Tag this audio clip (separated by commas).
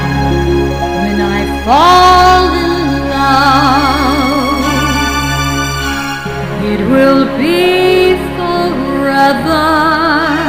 Music, Female singing